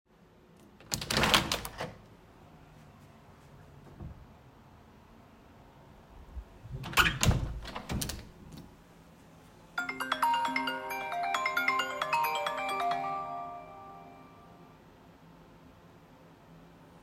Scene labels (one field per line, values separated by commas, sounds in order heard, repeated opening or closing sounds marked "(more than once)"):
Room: living room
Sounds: phone ringing, window (more than once)